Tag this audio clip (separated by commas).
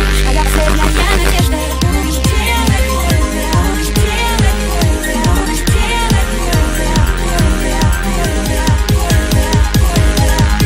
Electronic music, Music, Dubstep